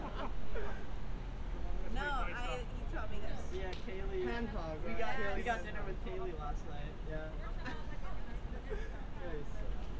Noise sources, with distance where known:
person or small group talking

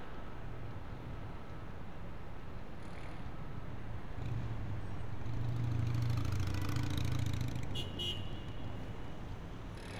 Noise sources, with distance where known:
medium-sounding engine, near
car horn, near

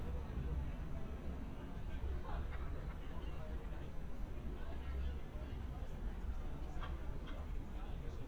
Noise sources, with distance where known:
person or small group talking, far

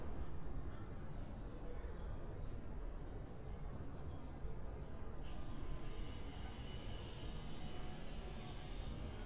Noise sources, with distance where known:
background noise

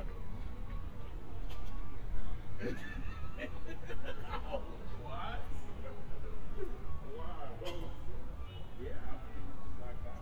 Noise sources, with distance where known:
unidentified human voice, near

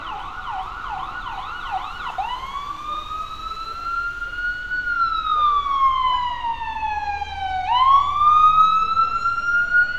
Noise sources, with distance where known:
siren, near
person or small group talking, far

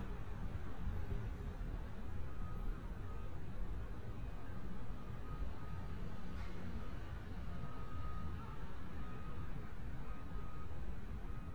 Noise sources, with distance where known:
unidentified alert signal, far

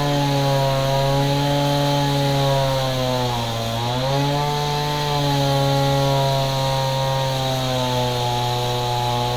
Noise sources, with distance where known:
chainsaw, near

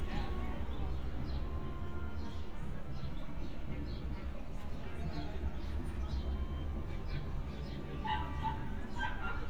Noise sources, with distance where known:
person or small group talking, far
dog barking or whining, near

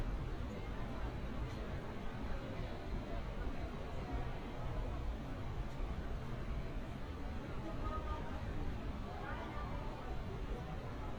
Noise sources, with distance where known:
person or small group talking, far

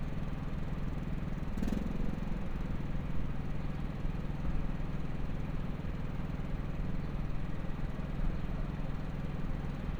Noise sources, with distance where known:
engine of unclear size

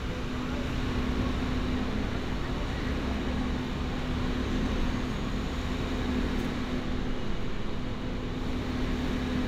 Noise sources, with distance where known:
large-sounding engine

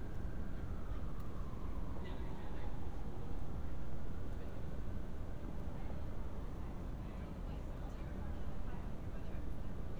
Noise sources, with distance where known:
siren, far
person or small group talking, far

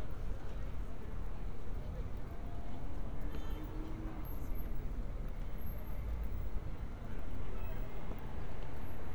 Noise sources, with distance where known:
engine of unclear size, far
car horn
person or small group talking

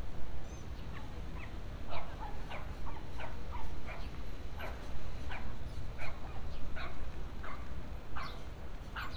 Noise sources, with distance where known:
dog barking or whining, far

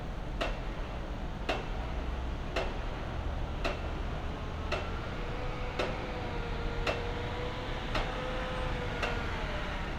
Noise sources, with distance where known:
unidentified impact machinery, near

